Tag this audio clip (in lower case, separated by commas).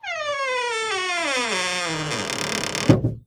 home sounds, door, wood, squeak